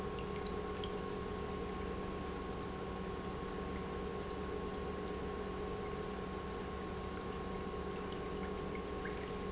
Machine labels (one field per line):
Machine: pump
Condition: normal